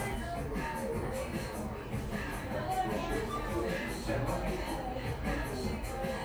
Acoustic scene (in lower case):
cafe